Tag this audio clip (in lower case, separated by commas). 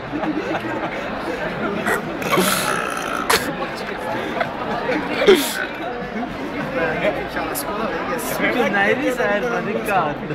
eructation, speech